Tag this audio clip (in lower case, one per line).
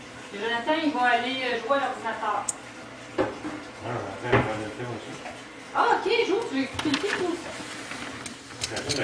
squish
speech